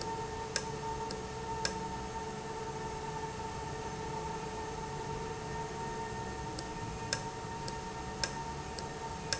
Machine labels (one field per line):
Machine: valve